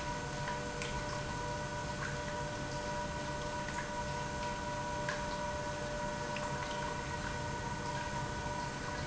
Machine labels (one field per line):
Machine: pump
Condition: normal